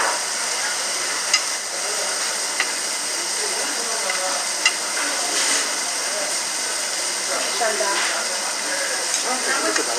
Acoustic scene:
restaurant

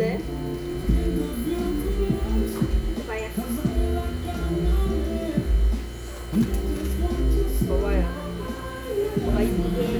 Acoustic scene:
restaurant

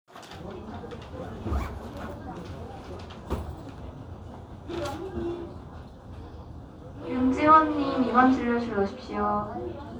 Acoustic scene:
crowded indoor space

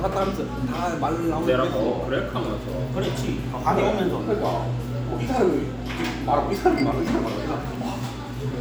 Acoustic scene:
cafe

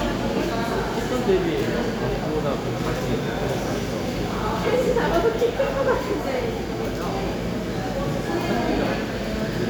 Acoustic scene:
cafe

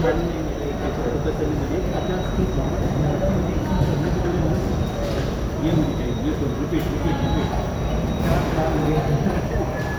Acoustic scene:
subway station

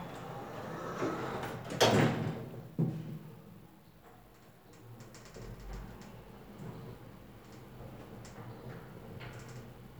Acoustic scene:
elevator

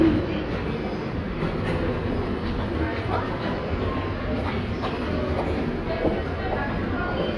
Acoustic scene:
subway station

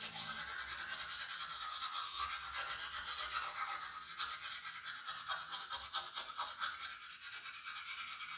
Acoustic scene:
restroom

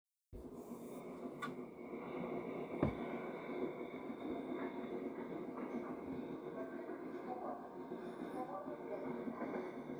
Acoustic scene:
subway train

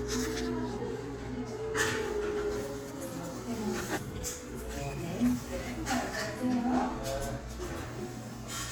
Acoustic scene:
crowded indoor space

